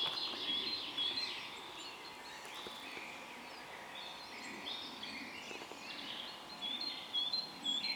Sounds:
animal, bird, wild animals

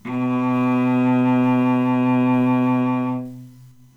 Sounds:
bowed string instrument, musical instrument, music

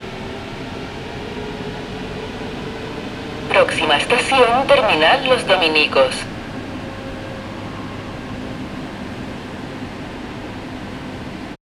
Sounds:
vehicle, subway, rail transport

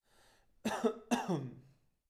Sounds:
respiratory sounds, cough

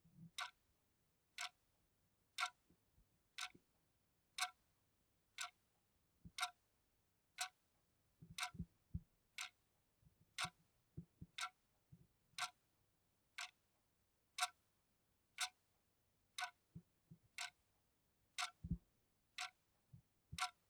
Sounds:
mechanisms, tick-tock, clock

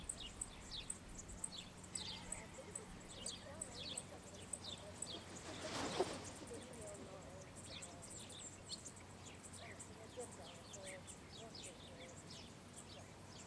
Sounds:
cricket, wild animals, insect, animal

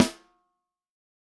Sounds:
musical instrument, drum, snare drum, music, percussion

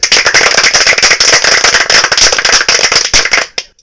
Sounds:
human group actions, applause

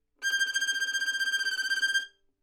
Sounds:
bowed string instrument, musical instrument, music

